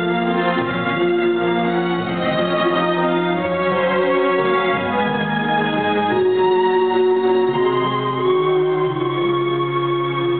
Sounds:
Music

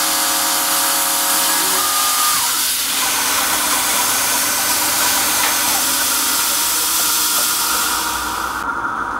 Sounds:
Tools

